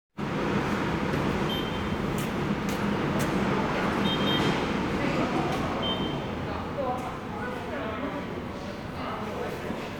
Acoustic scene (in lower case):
subway station